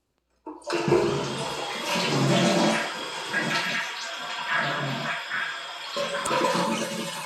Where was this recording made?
in a restroom